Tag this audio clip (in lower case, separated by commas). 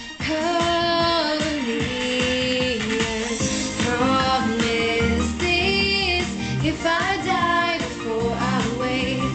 music, female singing